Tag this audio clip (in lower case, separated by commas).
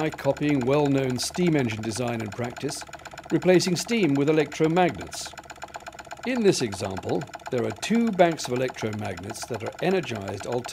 speech, engine